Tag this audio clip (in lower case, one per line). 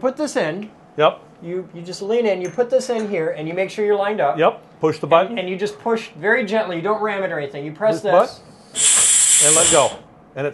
speech